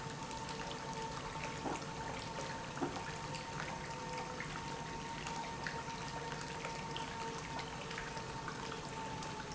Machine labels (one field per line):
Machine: pump